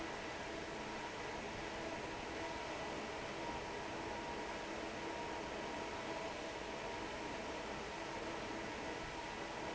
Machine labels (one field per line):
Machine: fan